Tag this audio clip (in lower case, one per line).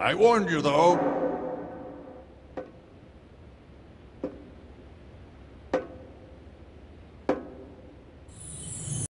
speech